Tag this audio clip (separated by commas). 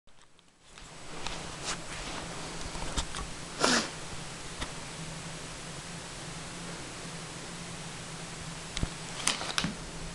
inside a small room